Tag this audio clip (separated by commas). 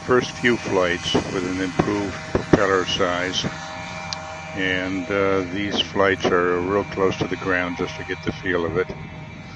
Speech